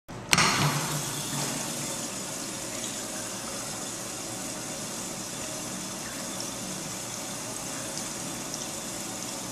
Clicking sound than water running